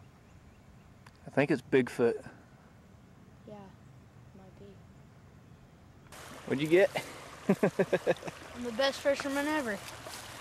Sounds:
outside, rural or natural
speech

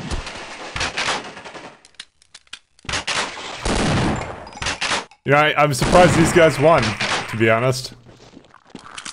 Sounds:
inside a small room
speech

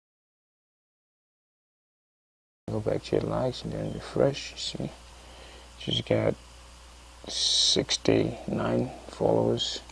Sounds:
inside a small room
speech
silence

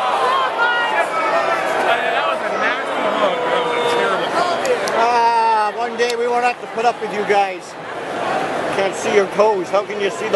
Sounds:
speech

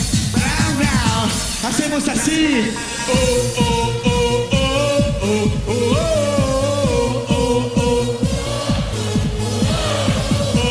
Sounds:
disco
music
dance music

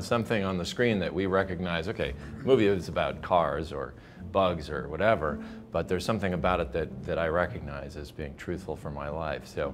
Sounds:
speech
music

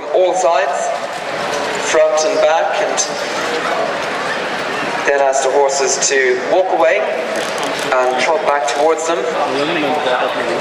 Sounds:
speech

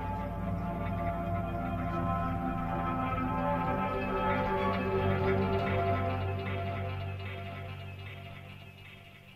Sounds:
music

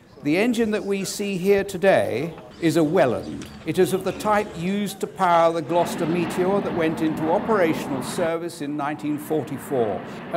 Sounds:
speech

